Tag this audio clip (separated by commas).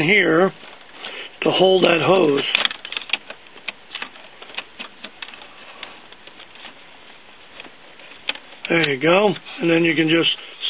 Speech